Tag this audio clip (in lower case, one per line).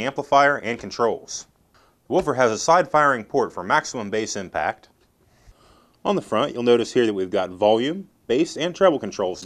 speech